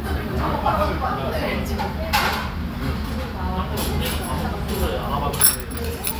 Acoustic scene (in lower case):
restaurant